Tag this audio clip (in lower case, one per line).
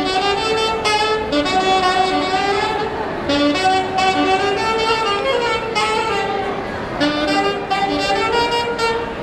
music
speech